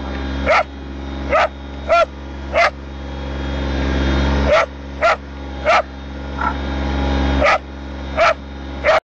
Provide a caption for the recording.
A motor vehicle engine is running, and a dog is barking